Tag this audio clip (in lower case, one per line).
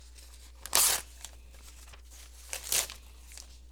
tearing